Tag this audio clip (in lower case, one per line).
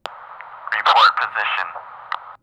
man speaking
speech
human voice